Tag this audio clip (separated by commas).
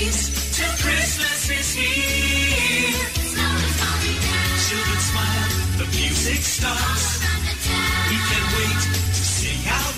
Music